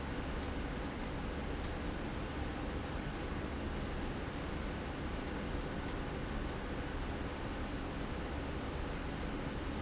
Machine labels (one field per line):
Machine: slide rail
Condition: abnormal